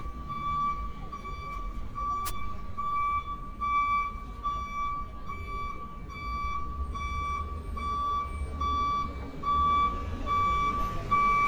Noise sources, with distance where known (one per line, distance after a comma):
reverse beeper, near